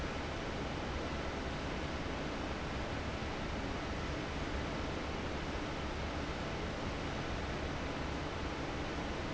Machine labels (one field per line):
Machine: fan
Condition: abnormal